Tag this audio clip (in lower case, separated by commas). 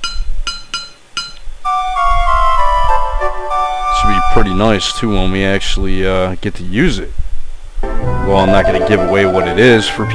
speech, music